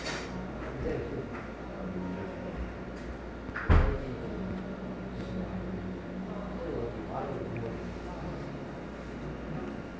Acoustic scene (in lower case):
cafe